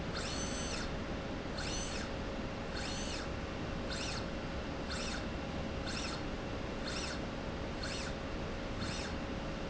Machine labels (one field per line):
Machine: slide rail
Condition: normal